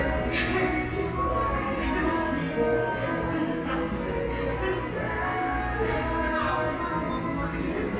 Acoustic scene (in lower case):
cafe